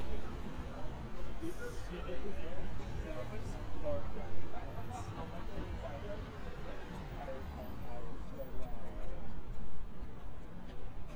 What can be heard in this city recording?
person or small group talking